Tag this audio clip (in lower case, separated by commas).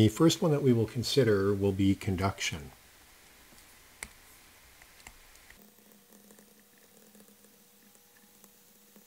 speech